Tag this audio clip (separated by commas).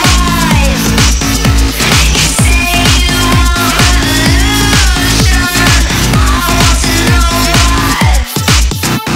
Dubstep, Music